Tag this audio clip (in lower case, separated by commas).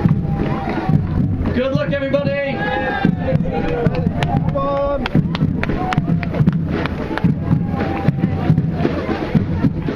speech, music, outside, urban or man-made, run